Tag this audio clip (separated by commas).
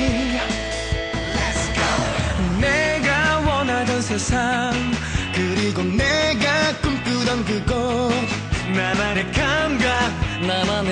Music